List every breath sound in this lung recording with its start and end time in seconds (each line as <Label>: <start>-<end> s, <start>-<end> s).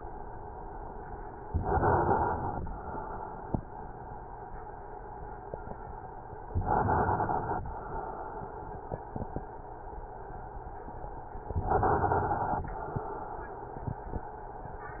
Inhalation: 1.47-2.68 s, 6.46-7.67 s, 11.47-12.69 s